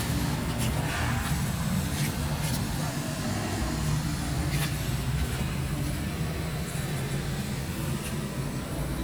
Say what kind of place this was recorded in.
residential area